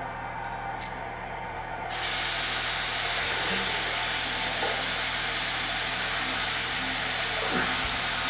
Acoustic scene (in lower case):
restroom